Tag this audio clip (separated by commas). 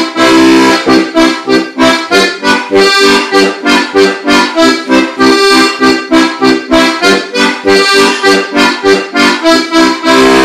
playing harmonica